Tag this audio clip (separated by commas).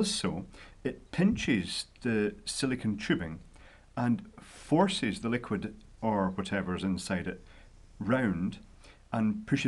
Speech